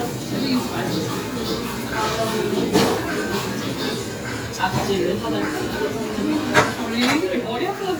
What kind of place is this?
restaurant